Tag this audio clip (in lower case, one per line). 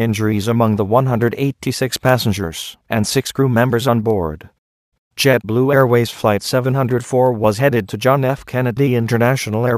speech